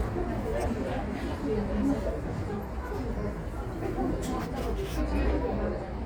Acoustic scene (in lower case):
subway station